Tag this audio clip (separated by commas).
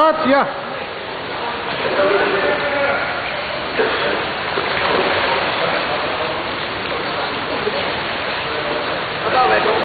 Vehicle, Boat, Speech